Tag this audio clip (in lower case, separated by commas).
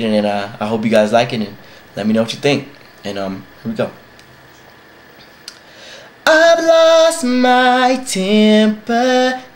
speech, male singing